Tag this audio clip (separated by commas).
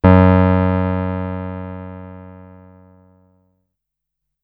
Musical instrument, Music, Keyboard (musical)